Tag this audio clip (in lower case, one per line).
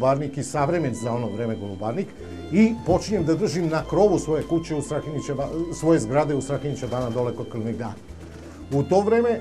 music
speech